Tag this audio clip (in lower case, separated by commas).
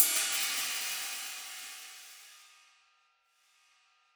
percussion, hi-hat, music, cymbal, musical instrument